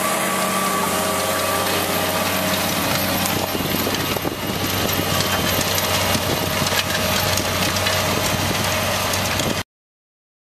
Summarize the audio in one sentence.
Engine of a vehicle and wind blowing